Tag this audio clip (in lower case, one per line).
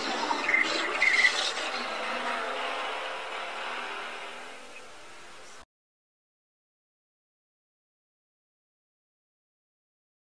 car
vehicle